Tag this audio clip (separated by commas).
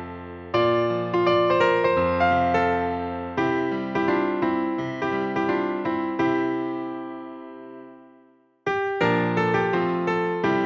playing glockenspiel